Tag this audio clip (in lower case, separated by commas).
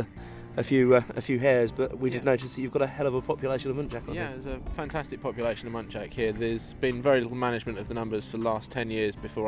speech